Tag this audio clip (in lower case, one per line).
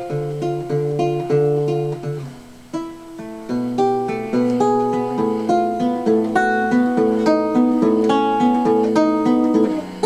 music
background music